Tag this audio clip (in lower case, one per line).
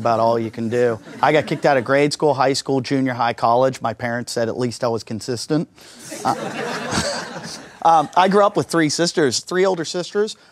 laughter
speech